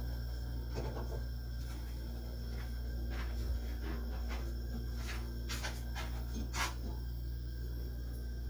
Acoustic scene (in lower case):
kitchen